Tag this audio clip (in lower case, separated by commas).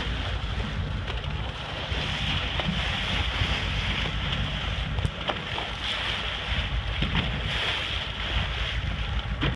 boat, rowboat, vehicle